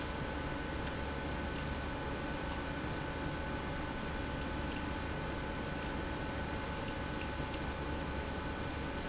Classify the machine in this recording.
pump